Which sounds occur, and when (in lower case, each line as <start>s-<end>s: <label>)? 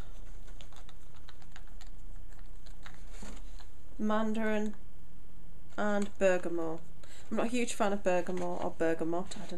0.0s-0.2s: breathing
0.0s-9.5s: mechanisms
0.2s-1.0s: computer keyboard
1.2s-1.9s: computer keyboard
2.2s-3.7s: computer keyboard
3.5s-3.6s: generic impact sounds
4.0s-4.7s: female speech
4.4s-4.5s: computer keyboard
4.7s-4.8s: computer keyboard
5.8s-6.8s: female speech
6.0s-6.2s: generic impact sounds
6.8s-6.9s: generic impact sounds
7.1s-7.4s: breathing
7.4s-9.5s: female speech
8.4s-8.7s: generic impact sounds
9.3s-9.5s: surface contact